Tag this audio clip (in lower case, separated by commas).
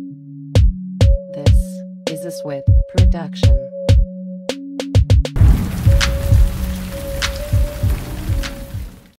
music, speech